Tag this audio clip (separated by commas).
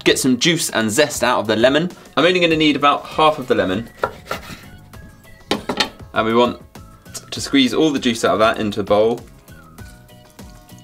Speech, inside a small room